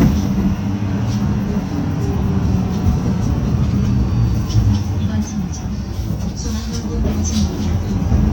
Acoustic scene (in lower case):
bus